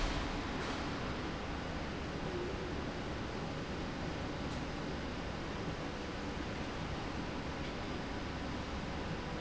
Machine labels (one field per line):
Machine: slide rail